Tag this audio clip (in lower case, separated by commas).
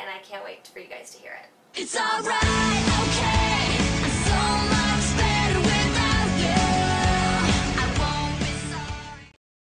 speech, music